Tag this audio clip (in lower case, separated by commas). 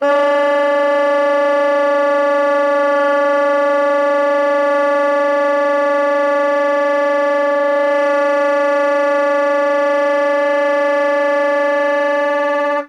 musical instrument, music, woodwind instrument